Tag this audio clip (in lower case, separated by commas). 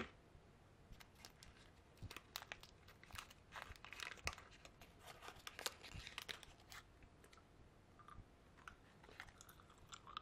chewing